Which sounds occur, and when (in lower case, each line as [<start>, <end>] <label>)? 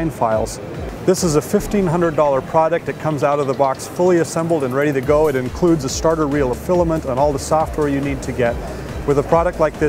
[0.00, 9.85] mechanisms
[0.00, 9.85] music
[9.09, 9.85] male speech